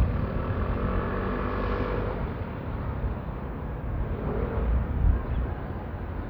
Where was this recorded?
on a street